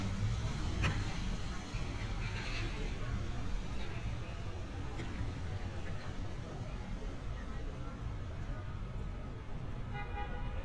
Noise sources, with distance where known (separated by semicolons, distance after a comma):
car horn, far; unidentified human voice, far